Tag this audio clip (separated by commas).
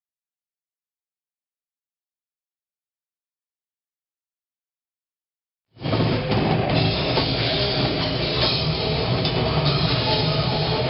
Percussion, Rock music, Drum, Musical instrument, Music, Heavy metal, Drum kit